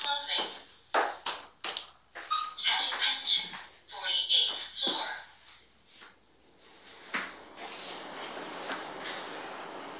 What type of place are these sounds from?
elevator